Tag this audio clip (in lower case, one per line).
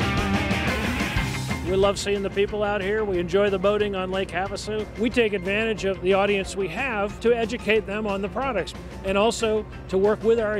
music
speech